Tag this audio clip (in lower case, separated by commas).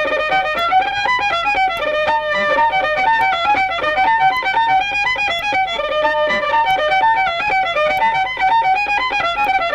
music, fiddle